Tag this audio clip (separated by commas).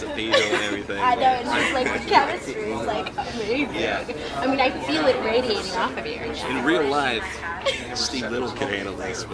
Speech, Chatter